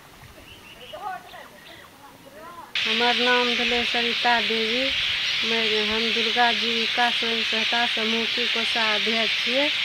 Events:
[0.00, 9.84] wind
[0.38, 0.97] tweet
[0.74, 1.40] female speech
[1.45, 2.04] tweet
[1.97, 2.60] female speech
[2.70, 9.84] noise
[2.78, 4.85] female speech
[3.53, 4.05] wind noise (microphone)
[4.88, 5.20] wind noise (microphone)
[5.34, 9.68] female speech

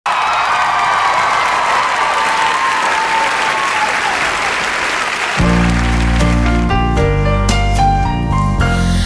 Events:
[0.01, 6.21] clapping
[0.04, 6.26] crowd
[6.15, 9.05] music

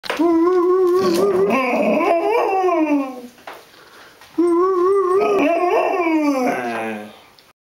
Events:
[4.36, 7.39] dog
[7.36, 7.46] generic impact sounds

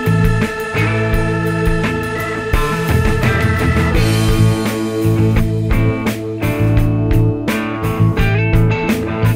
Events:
[0.00, 9.35] music

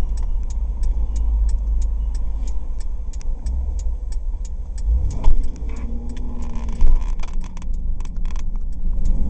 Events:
[0.00, 9.25] car
[0.00, 9.25] wind
[0.11, 5.77] tick
[4.85, 7.60] accelerating
[5.08, 5.79] generic impact sounds
[6.04, 6.17] tick
[6.32, 7.71] generic impact sounds
[7.08, 9.25] tick
[7.90, 8.38] generic impact sounds
[8.78, 9.25] accelerating

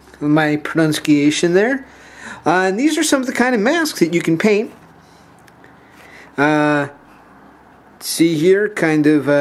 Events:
[0.00, 0.19] generic impact sounds
[0.00, 9.40] mechanisms
[0.15, 1.78] male speech
[1.87, 2.38] breathing
[2.41, 4.67] male speech
[4.96, 5.32] surface contact
[5.36, 5.71] generic impact sounds
[5.89, 6.31] breathing
[6.33, 6.93] male speech
[7.02, 7.31] surface contact
[7.98, 9.40] male speech

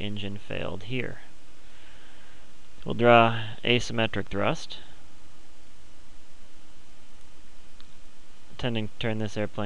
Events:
[0.00, 1.13] man speaking
[0.00, 9.65] background noise
[1.68, 2.50] breathing
[2.88, 4.81] man speaking
[8.59, 9.65] man speaking

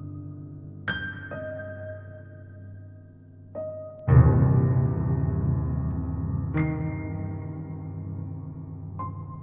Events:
[0.00, 9.42] music

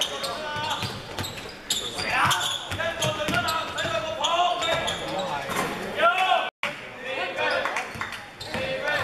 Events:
[0.00, 0.26] squeal
[0.00, 0.93] man speaking
[0.00, 6.46] background noise
[0.00, 6.49] conversation
[0.49, 0.59] basketball bounce
[0.61, 0.93] squeal
[0.74, 0.95] basketball bounce
[1.10, 1.29] basketball bounce
[1.16, 1.29] squeal
[1.44, 1.53] squeal
[1.69, 2.51] squeal
[1.99, 2.48] man speaking
[2.01, 2.56] shout
[2.20, 2.37] basketball bounce
[2.63, 2.79] basketball bounce
[2.69, 5.74] man speaking
[2.98, 3.06] squeal
[3.00, 3.08] basketball bounce
[3.24, 3.38] basketball bounce
[3.41, 3.52] squeal
[3.73, 3.92] generic impact sounds
[3.73, 3.86] squeal
[4.19, 4.48] squeal
[4.57, 4.87] generic impact sounds
[4.62, 4.94] squeal
[5.13, 5.23] squeal
[5.49, 5.79] generic impact sounds
[5.94, 6.44] man speaking
[5.94, 6.49] shout
[6.11, 6.26] generic impact sounds
[6.59, 6.73] clapping
[6.60, 6.76] human voice
[6.60, 8.24] man speaking
[6.62, 9.03] background noise
[6.62, 9.03] conversation
[7.46, 7.54] squeal
[7.58, 8.16] clapping
[7.83, 8.14] squeal
[7.87, 8.05] basketball bounce
[8.13, 8.58] human voice
[8.35, 8.54] squeal
[8.47, 9.03] man speaking
[8.48, 8.64] basketball bounce

